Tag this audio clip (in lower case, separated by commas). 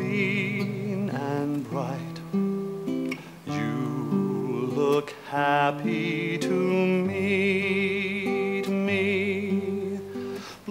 music, classical music